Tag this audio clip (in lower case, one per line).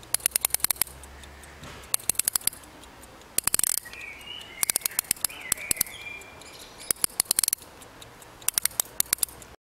tick-tock
tick